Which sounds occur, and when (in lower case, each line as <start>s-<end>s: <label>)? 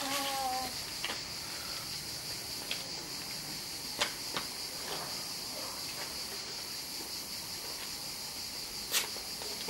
0.0s-0.7s: buzz
0.0s-9.6s: insect
0.0s-9.6s: wind
1.0s-1.2s: generic impact sounds
1.4s-1.8s: breathing
2.2s-2.4s: generic impact sounds
2.5s-2.8s: generic impact sounds
3.2s-3.3s: generic impact sounds
4.0s-4.1s: generic impact sounds
4.3s-4.5s: generic impact sounds
4.8s-5.2s: generic impact sounds
5.5s-6.1s: generic impact sounds
6.3s-6.5s: generic impact sounds
7.4s-7.8s: generic impact sounds
8.9s-9.2s: generic impact sounds
9.4s-9.6s: man speaking
9.4s-9.6s: generic impact sounds